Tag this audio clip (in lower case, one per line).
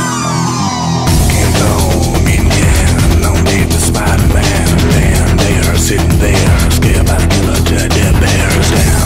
music